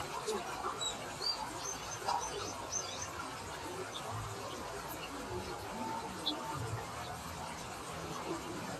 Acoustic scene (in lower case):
park